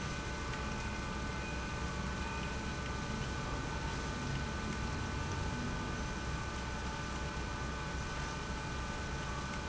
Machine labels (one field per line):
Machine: pump